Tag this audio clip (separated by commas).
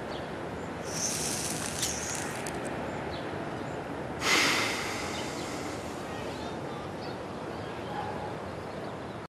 pets, Animal